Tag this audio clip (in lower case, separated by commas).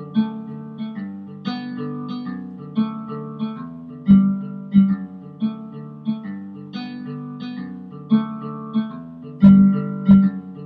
guitar, musical instrument, music, plucked string instrument